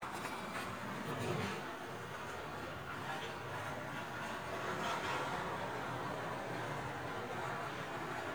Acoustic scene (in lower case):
residential area